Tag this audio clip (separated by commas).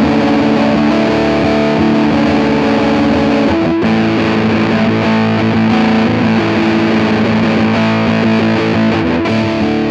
Music, Distortion